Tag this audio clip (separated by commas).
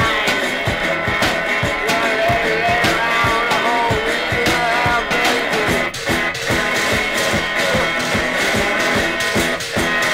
Music, Speech